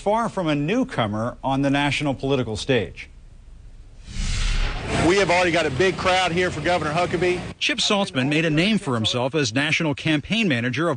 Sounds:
narration
speech
man speaking

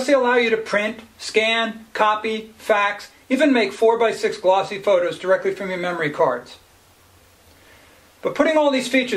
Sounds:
speech

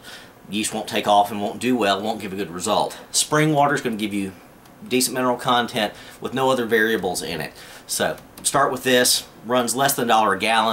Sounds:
speech

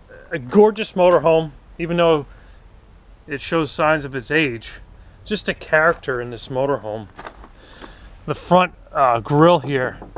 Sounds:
speech

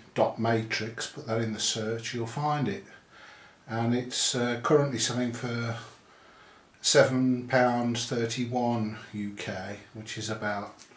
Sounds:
speech

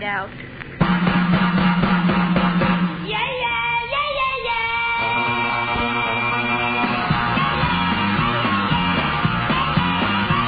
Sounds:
music

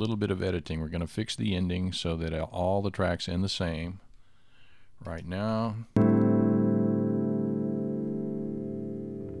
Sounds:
speech
music

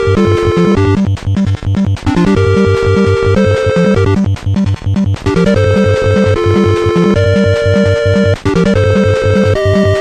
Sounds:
music

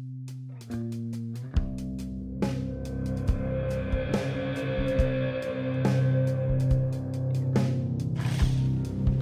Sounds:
tools
music

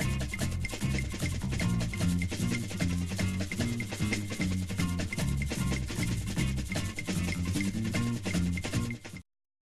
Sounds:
music

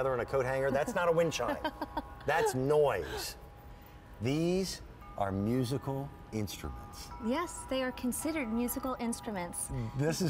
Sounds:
speech

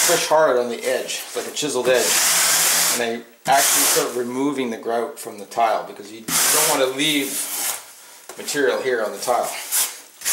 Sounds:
speech
inside a small room

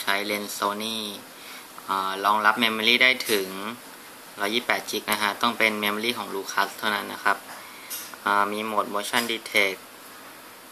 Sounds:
speech

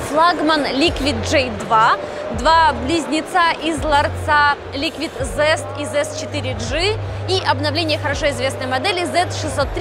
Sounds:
speech

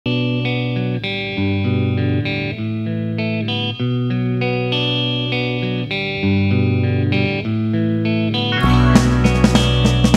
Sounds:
effects unit
music

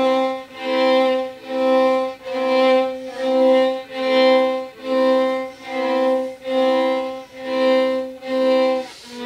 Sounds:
music
fiddle
musical instrument

